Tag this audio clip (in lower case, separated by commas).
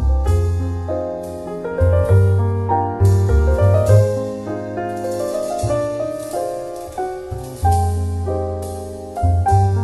music